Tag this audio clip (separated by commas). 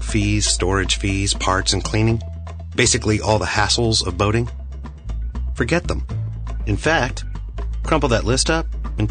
Music, Speech